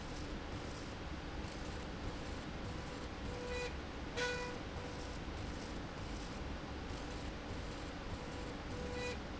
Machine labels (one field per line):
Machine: slide rail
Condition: normal